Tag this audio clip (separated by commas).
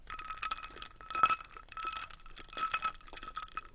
Liquid